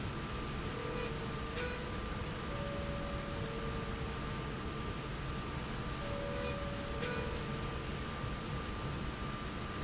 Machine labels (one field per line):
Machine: slide rail